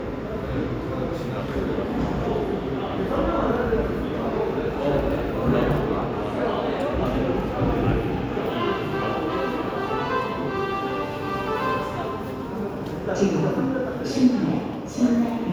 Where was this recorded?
in a subway station